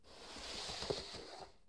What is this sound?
wooden furniture moving